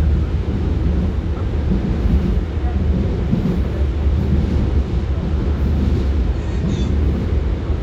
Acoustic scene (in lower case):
subway train